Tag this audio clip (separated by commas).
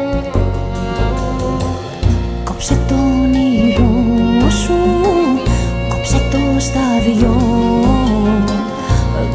Music